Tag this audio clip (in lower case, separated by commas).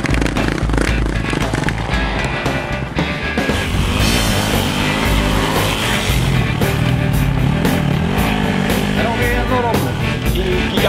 music, speech